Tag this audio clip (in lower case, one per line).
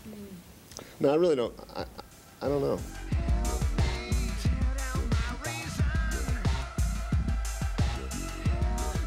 speech
music